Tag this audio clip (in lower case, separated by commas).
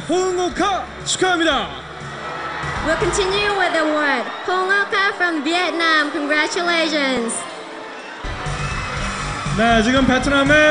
music, speech